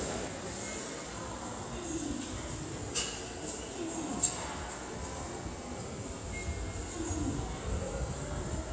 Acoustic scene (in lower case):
subway station